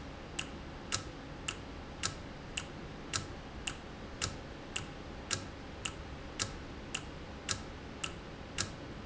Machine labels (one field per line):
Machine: valve